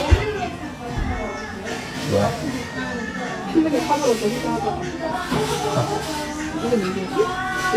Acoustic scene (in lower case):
restaurant